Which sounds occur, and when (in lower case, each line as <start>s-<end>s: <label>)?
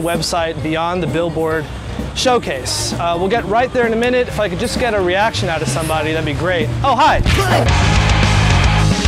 0.0s-1.6s: man speaking
0.0s-7.6s: speech noise
0.0s-9.0s: music
0.0s-9.0s: wind
2.2s-6.6s: man speaking
6.8s-7.6s: man speaking